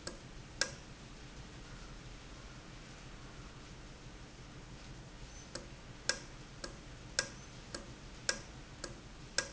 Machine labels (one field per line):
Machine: valve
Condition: normal